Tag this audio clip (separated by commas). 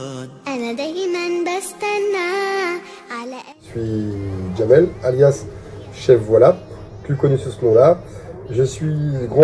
Music, Speech